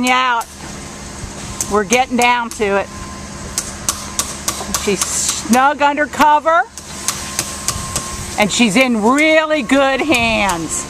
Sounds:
speech

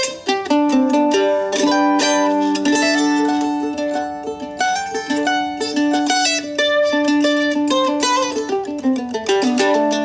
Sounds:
playing mandolin

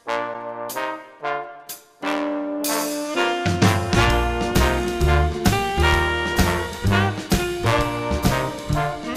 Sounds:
music

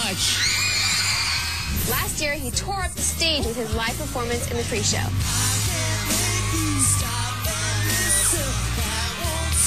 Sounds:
jingle bell

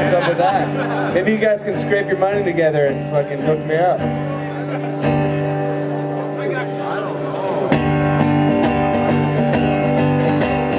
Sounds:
music, speech

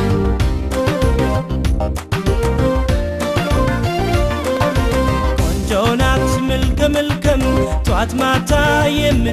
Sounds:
music, funk

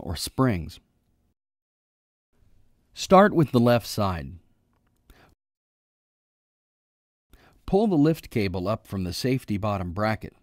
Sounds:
speech

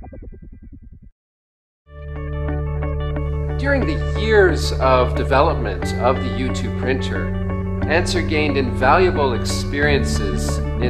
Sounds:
speech, music

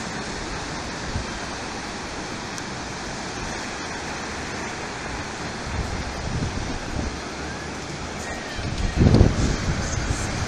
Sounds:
ocean, wind noise (microphone), waves, wind

